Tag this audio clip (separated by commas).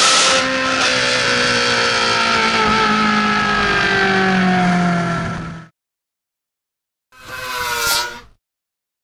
Car, revving, Vehicle